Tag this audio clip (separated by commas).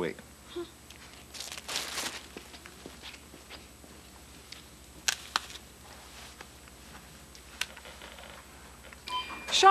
Speech